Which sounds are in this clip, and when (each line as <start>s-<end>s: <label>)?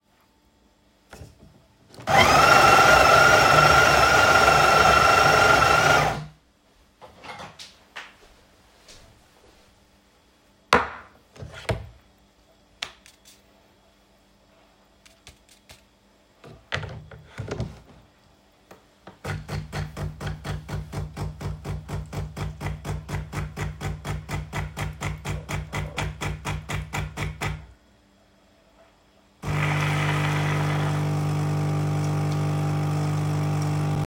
7.0s-8.4s: cutlery and dishes
29.4s-34.1s: coffee machine